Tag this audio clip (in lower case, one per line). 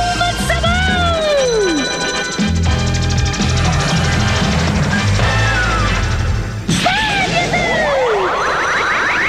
music
speech